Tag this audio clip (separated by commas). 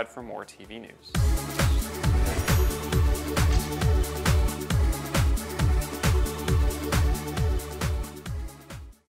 Music, Speech